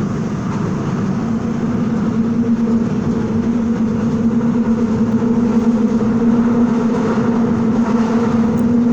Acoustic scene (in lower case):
subway train